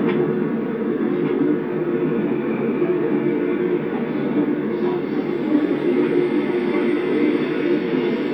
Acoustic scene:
subway train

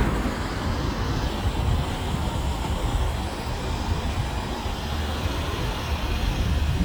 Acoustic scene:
street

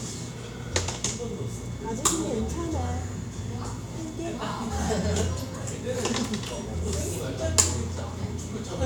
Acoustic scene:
cafe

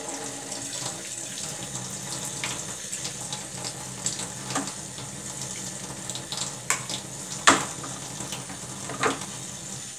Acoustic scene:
kitchen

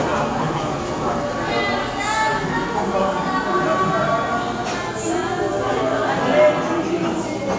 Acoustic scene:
cafe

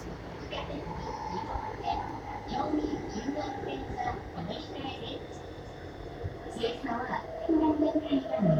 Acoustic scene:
subway train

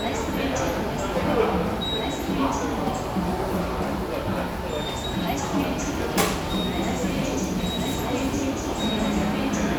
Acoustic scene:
subway station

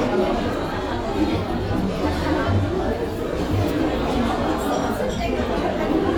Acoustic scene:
cafe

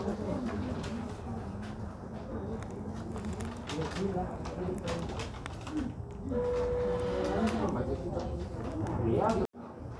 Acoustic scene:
crowded indoor space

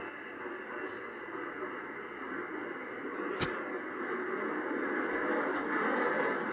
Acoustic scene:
subway train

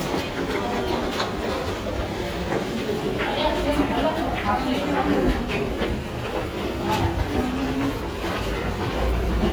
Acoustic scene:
subway station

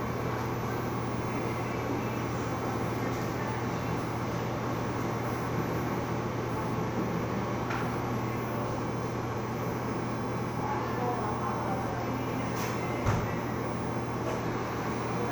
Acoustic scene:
cafe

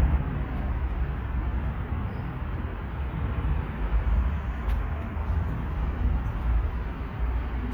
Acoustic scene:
residential area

